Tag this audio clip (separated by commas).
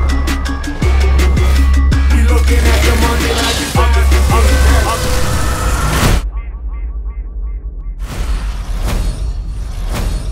Music